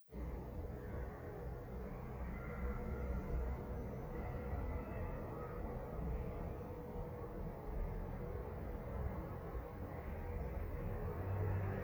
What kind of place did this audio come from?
elevator